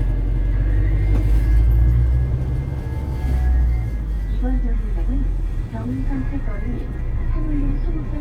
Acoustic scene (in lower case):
bus